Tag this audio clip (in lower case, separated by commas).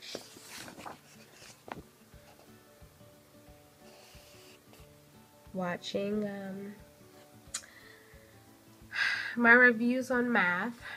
speech, inside a small room